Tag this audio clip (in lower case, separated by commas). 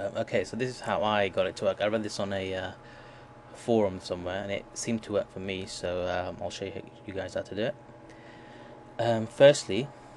speech